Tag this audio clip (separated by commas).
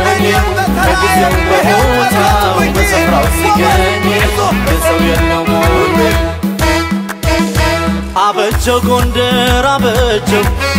Music